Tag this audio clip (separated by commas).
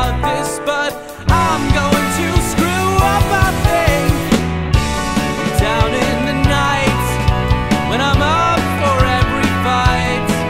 Music